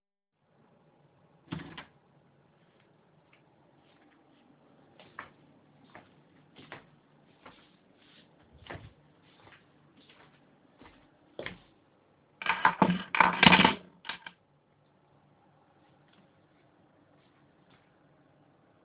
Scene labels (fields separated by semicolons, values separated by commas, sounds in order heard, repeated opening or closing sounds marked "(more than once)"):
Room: hallway; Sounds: footsteps, keys